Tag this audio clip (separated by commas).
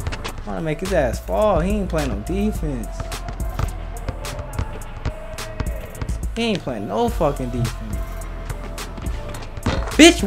Basketball bounce, Speech, Music